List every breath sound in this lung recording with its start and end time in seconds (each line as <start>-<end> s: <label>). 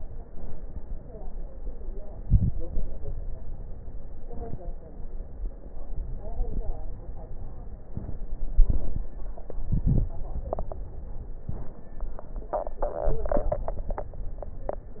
2.03-2.65 s: inhalation
2.03-2.65 s: crackles
2.66-4.19 s: crackles
2.68-4.22 s: exhalation
4.20-4.82 s: crackles
4.23-4.83 s: inhalation
4.83-5.93 s: exhalation
4.83-5.93 s: crackles
5.94-6.84 s: crackles
5.95-6.87 s: inhalation
6.87-7.90 s: exhalation
6.87-7.90 s: crackles
7.91-8.54 s: inhalation
7.91-8.54 s: crackles
8.55-9.48 s: exhalation
8.55-9.48 s: crackles
9.49-10.16 s: inhalation
9.49-10.16 s: crackles
10.17-11.49 s: exhalation